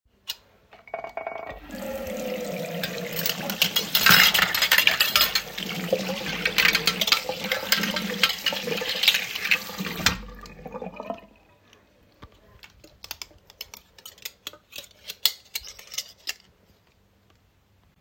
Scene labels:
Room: kitchen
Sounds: cutlery and dishes, running water

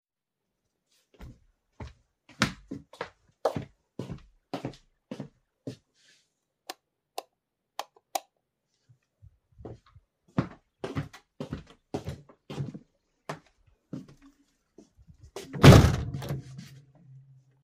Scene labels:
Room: bedroom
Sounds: footsteps, light switch, window

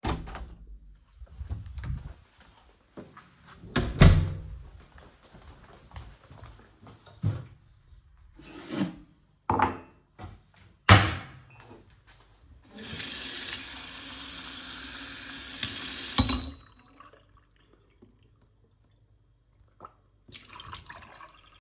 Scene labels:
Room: kitchen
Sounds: door (more than once), running water

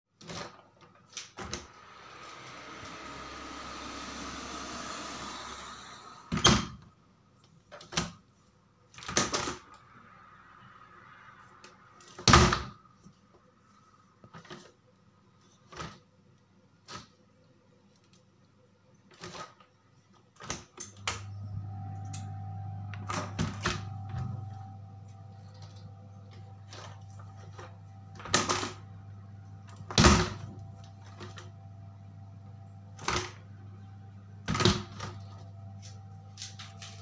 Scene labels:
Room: hallway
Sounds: window (more than once)

